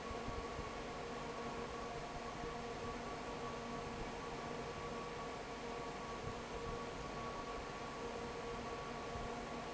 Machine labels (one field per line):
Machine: fan